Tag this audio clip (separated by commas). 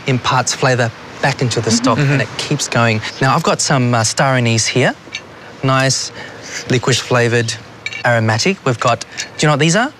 Speech